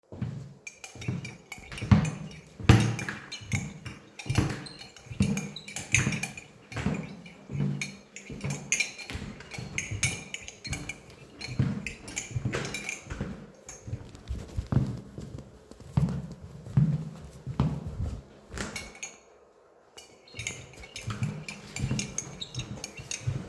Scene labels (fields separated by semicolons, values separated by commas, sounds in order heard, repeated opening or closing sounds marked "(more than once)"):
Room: hallway; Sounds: footsteps, cutlery and dishes